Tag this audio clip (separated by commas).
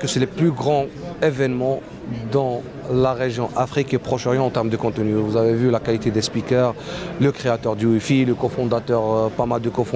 Speech